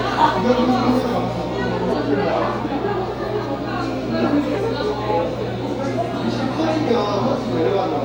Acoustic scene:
crowded indoor space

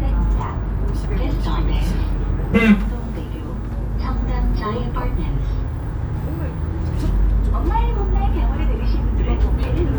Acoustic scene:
bus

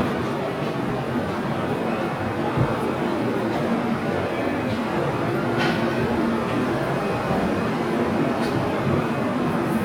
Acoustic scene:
subway station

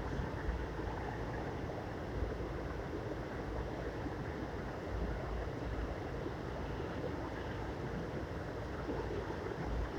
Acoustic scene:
subway train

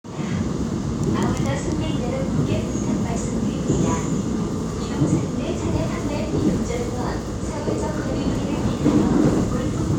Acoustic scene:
subway train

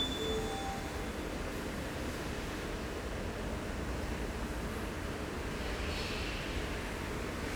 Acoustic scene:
subway station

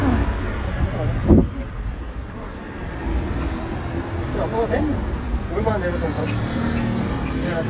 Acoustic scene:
street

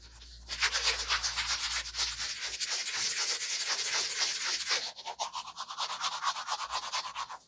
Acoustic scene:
restroom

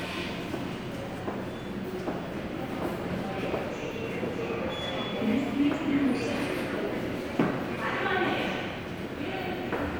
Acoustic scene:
subway station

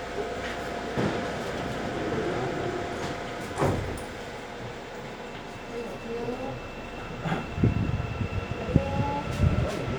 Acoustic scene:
subway train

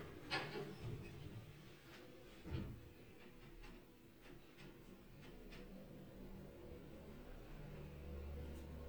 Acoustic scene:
elevator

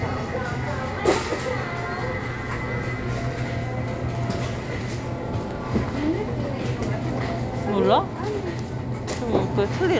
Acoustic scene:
crowded indoor space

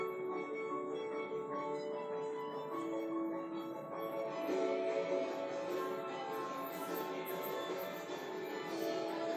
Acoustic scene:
subway station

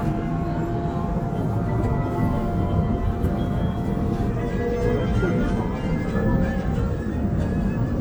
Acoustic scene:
subway train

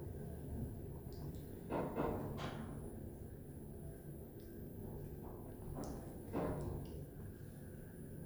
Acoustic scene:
elevator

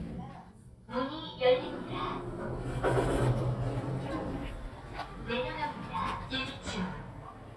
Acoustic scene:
elevator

